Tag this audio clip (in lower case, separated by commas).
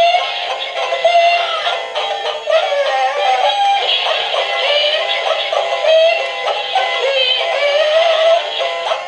synthetic singing, music